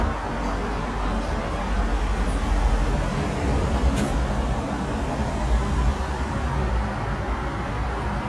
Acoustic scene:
elevator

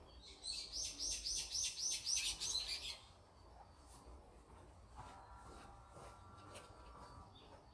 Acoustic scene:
park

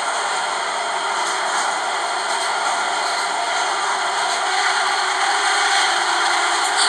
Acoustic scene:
subway train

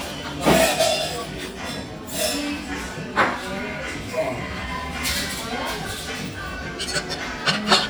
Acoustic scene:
restaurant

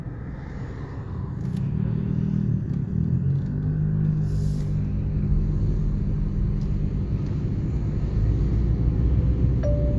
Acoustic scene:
car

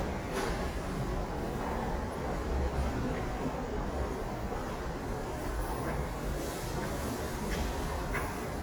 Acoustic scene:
subway station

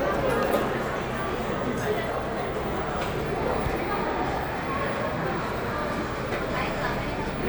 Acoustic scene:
cafe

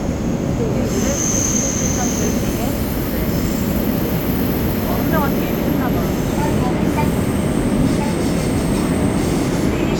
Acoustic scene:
subway train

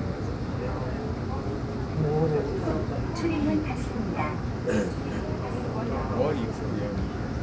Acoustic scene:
subway train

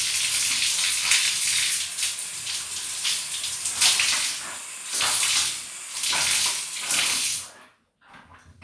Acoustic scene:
restroom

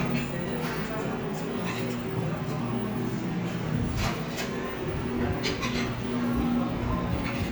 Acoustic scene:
cafe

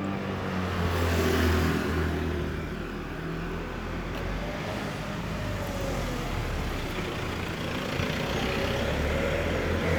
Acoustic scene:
residential area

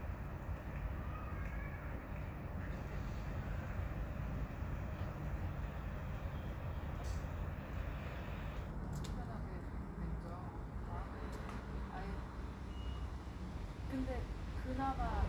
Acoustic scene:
residential area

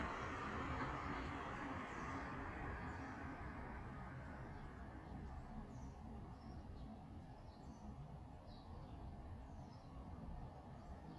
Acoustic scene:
residential area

